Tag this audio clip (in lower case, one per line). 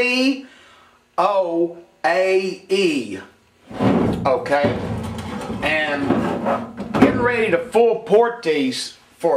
speech